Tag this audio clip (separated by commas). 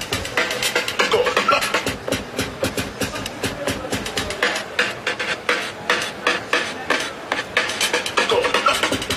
Music, Speech, Scratching (performance technique)